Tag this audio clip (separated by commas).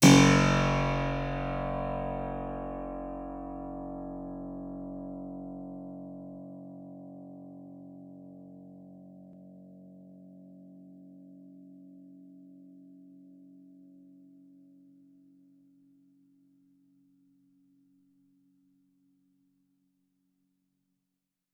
Keyboard (musical), Music, Musical instrument